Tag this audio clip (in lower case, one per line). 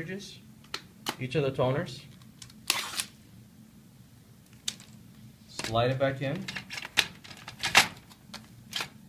speech